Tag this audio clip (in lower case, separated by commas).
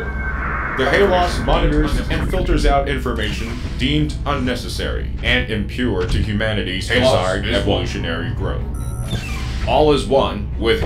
background music, music, speech